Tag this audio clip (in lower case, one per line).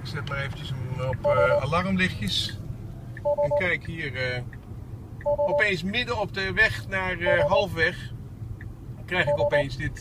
speech